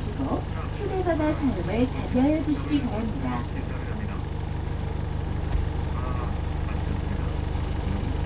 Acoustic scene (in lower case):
bus